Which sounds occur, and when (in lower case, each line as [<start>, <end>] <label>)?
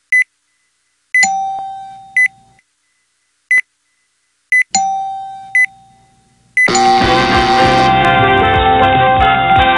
[0.00, 6.65] video game sound
[0.09, 0.22] bleep
[0.48, 0.90] bleep
[1.11, 1.23] bleep
[1.16, 2.60] ding
[2.15, 2.24] bleep
[2.79, 3.25] bleep
[3.48, 3.60] bleep
[3.79, 4.29] bleep
[4.49, 4.60] bleep
[4.71, 6.63] ding
[5.51, 5.65] bleep
[5.87, 6.37] bleep
[6.56, 6.66] bleep
[6.64, 7.87] buzzer
[6.96, 9.75] music